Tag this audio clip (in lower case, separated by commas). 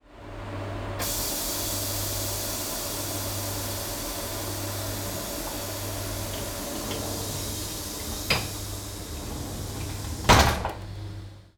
home sounds, sliding door, door, train, rail transport, vehicle